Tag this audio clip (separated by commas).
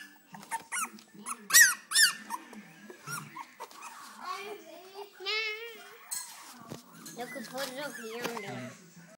Speech, Animal, Domestic animals